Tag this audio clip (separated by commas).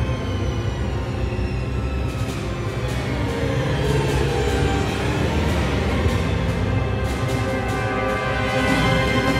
Music